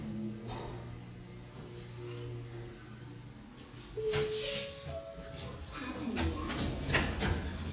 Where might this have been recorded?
in an elevator